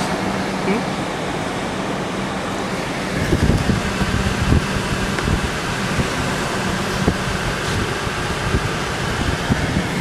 Vehicles running by and wind blowing on a microphone